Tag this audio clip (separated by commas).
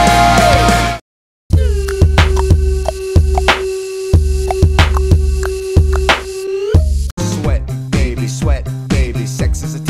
Music